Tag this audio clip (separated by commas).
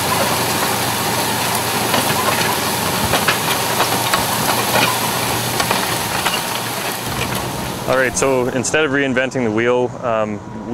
Vehicle, Speech